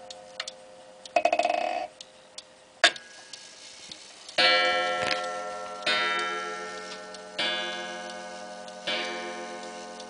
A clock is being unwound and starts to tick